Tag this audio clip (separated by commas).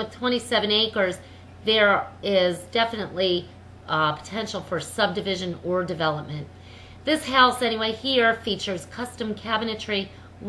Speech